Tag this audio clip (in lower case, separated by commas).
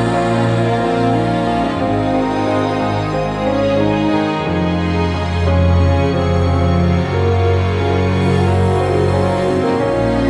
background music